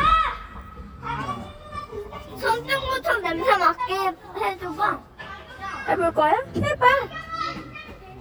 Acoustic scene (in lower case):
park